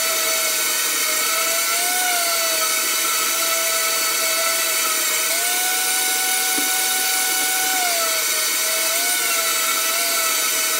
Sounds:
tools

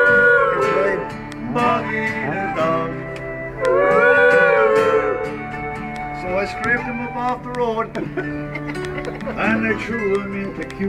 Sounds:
speech, music

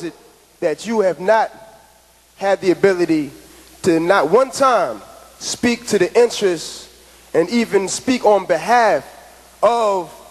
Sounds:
speech, narration, male speech

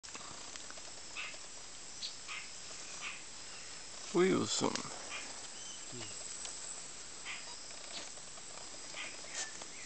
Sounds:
bird, speech, outside, rural or natural

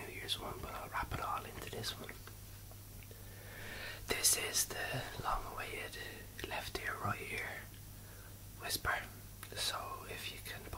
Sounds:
whispering, speech

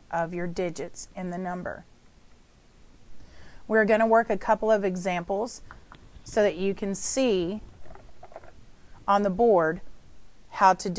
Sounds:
speech

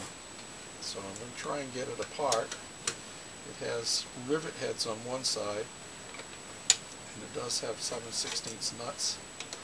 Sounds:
speech

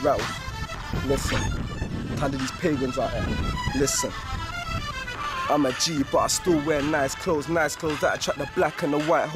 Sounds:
hip hop music, music

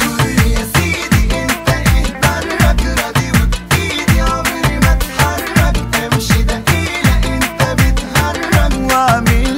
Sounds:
afrobeat, music

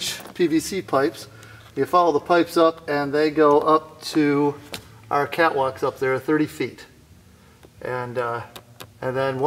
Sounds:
speech

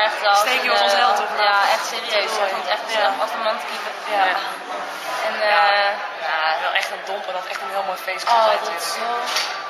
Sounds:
speech, music

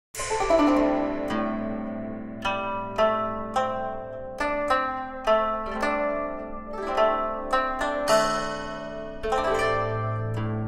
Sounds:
music, inside a small room

